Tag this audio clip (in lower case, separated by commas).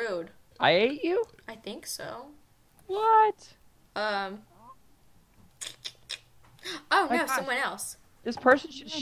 speech